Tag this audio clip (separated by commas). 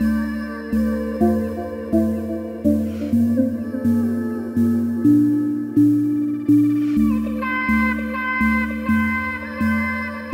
Music, Synthesizer